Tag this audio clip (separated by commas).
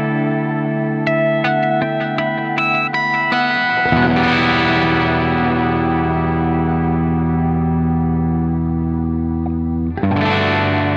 Effects unit, Music